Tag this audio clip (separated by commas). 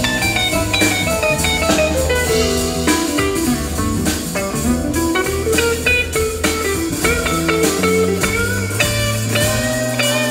Guitar, Musical instrument, Plucked string instrument, Jazz, Blues, Music